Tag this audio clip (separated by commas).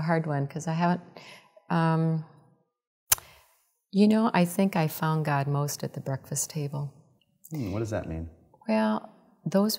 Speech